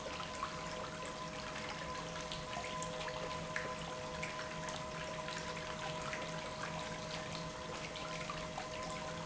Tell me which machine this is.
pump